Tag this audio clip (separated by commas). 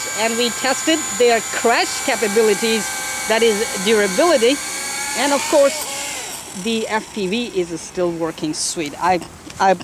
Speech, outside, rural or natural